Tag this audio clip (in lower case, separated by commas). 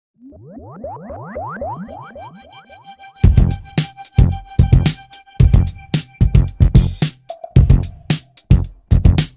music, soul music